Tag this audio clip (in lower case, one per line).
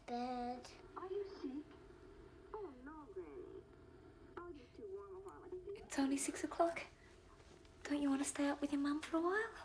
speech